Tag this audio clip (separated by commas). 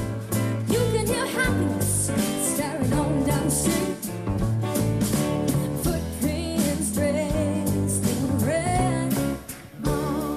Jazz, Music